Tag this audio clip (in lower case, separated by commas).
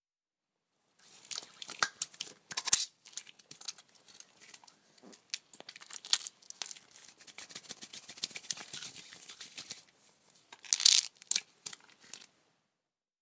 hands